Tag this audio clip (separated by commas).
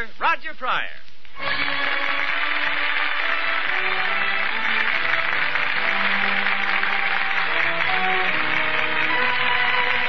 Speech, Music